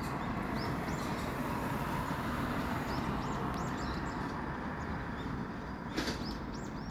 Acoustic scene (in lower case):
residential area